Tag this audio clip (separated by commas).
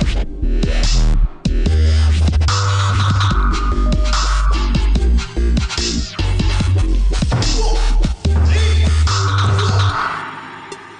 Music, Electronic music, Dubstep